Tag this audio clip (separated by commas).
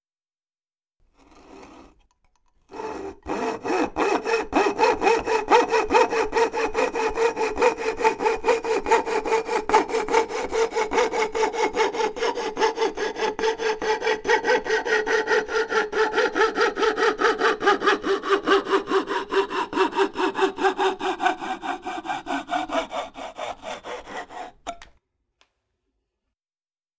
Tools, Sawing